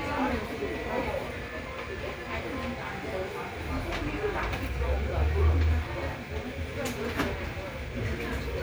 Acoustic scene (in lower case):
crowded indoor space